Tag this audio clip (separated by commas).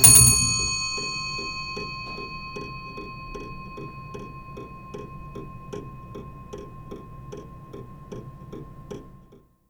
Mechanisms, Clock